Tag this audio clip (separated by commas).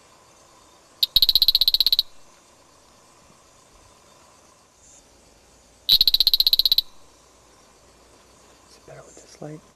Frog